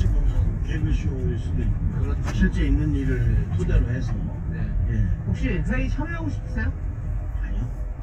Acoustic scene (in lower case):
car